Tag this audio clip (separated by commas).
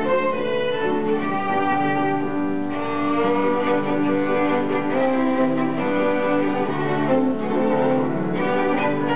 Music, fiddle, Musical instrument